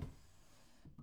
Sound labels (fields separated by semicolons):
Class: drawer; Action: opening; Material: wooden